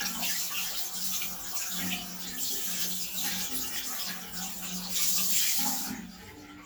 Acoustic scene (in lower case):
restroom